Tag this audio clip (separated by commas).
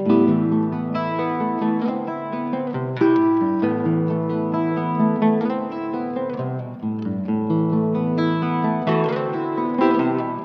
Strum, Musical instrument, Plucked string instrument, Music, Guitar